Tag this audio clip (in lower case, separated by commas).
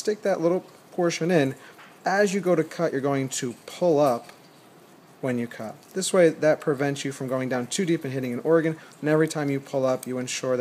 speech